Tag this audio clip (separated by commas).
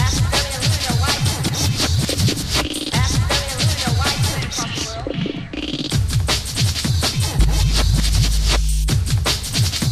Music